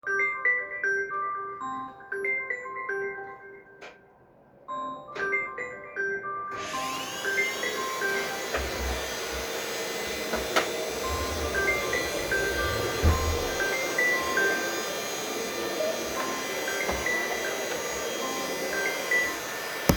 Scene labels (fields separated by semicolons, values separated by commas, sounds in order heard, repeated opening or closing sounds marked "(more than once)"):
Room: hallway, living room; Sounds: phone ringing, vacuum cleaner